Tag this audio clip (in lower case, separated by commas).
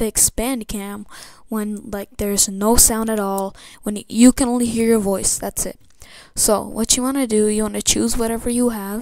speech